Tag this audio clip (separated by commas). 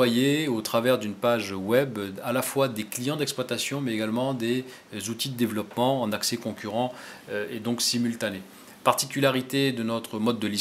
Speech